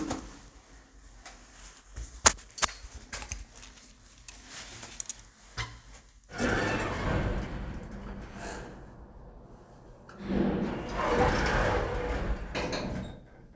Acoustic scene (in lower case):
elevator